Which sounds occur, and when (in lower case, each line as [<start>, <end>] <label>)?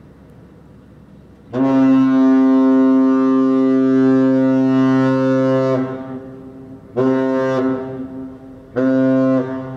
[0.00, 9.75] mechanisms
[8.73, 9.55] foghorn
[9.44, 9.75] echo